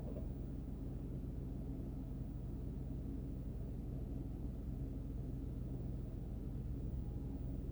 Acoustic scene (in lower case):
car